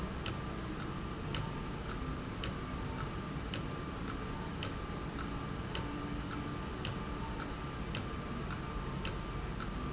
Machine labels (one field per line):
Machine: valve